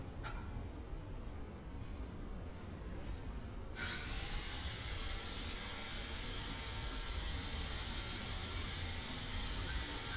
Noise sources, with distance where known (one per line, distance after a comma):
small or medium rotating saw, far